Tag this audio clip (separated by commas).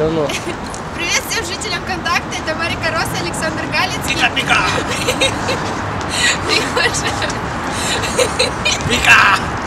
Speech